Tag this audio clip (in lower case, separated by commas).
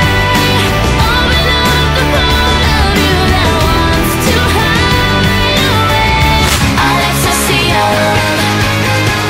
music, pop music, dance music